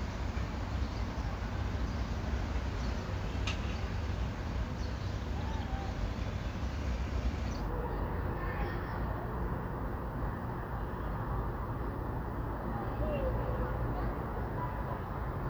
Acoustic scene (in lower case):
residential area